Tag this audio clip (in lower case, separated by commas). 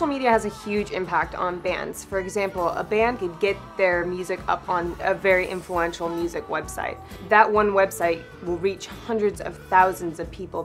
speech, music